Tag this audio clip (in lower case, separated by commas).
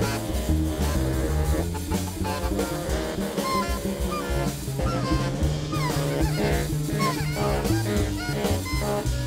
music, brass instrument, saxophone, musical instrument